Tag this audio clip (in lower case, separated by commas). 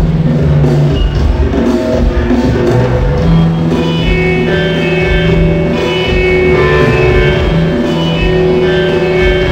musical instrument, music, drum, drum kit